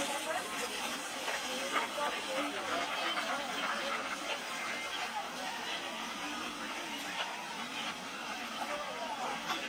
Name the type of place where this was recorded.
park